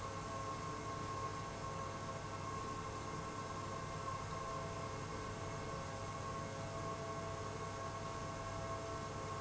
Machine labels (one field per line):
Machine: pump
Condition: abnormal